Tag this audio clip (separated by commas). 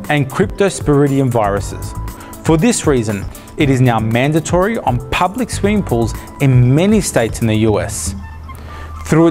Music, Speech